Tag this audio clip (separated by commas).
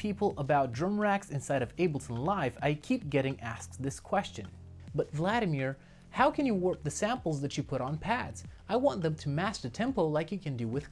Speech